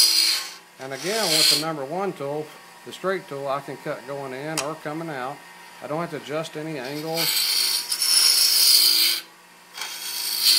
A man narrates, the sound of a power tool spinning followed by several loud scratches